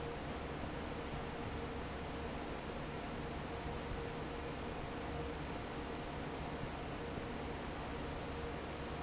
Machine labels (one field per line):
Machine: fan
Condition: normal